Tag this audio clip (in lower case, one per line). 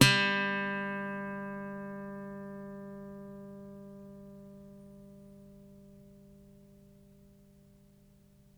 acoustic guitar
musical instrument
plucked string instrument
music
guitar